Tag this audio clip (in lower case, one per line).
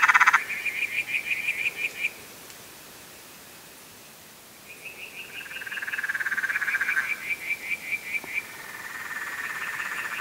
frog croaking